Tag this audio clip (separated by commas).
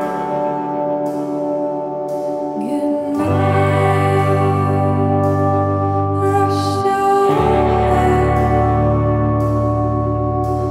Soundtrack music, Music